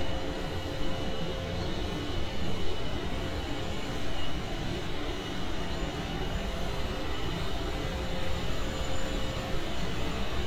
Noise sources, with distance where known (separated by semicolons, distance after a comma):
large-sounding engine; rock drill